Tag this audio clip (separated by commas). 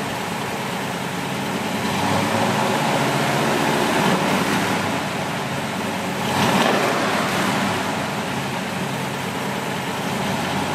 Vehicle, Car